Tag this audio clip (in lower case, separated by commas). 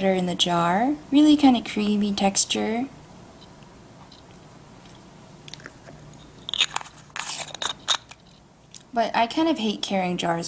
speech, inside a small room